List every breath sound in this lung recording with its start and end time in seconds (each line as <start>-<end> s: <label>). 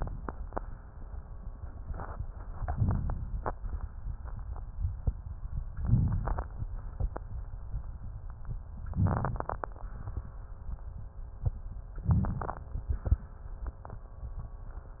2.46-3.39 s: inhalation
5.75-6.53 s: inhalation
8.88-9.66 s: inhalation
11.88-12.67 s: inhalation